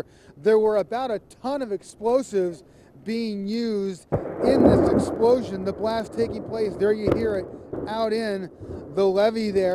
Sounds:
Speech, Explosion

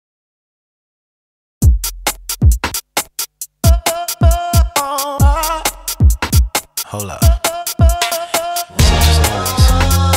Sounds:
Drum machine, Music

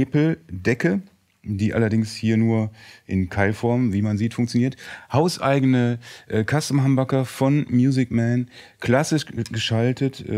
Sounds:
Speech

